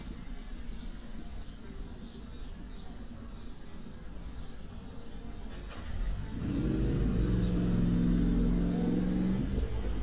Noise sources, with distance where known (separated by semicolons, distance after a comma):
engine of unclear size, near; music from a fixed source, far